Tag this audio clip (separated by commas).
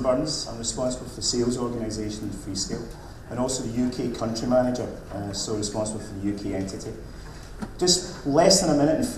Speech